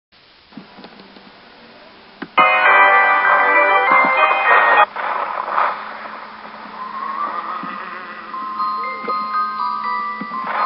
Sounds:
Mallet percussion, Glockenspiel, Marimba

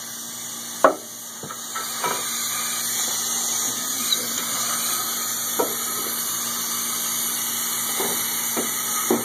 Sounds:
Tools

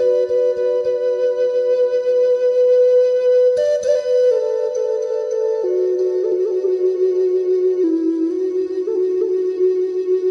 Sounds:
Music, Flute

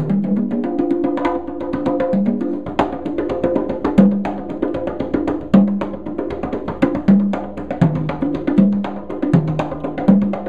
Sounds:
Music, Percussion

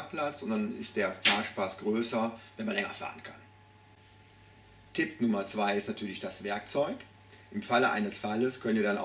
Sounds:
Speech

